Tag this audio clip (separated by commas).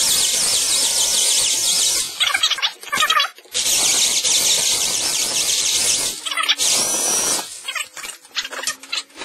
Power tool, Drill, Tools